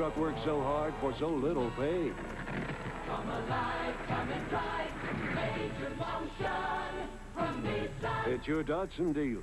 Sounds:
Vehicle, Music, Speech, Car

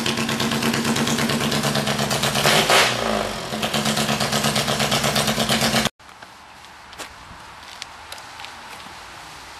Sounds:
Walk

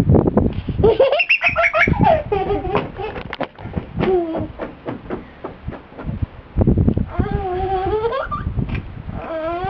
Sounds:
Laughter

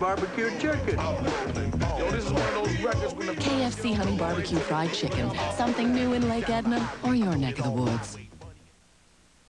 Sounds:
Speech, Music

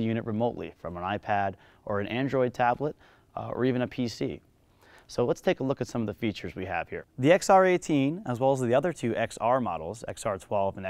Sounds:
Speech

